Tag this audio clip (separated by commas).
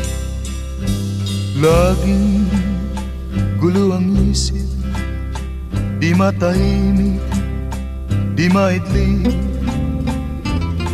Music